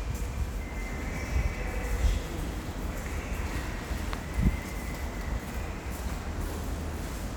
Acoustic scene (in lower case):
subway station